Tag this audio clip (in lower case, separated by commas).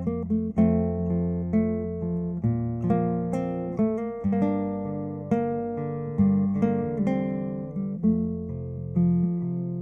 music, guitar, plucked string instrument, musical instrument, strum